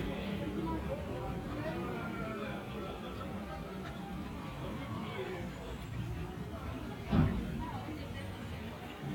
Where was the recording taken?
in a residential area